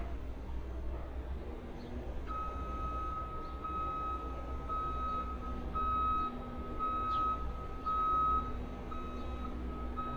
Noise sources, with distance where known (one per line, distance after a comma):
engine of unclear size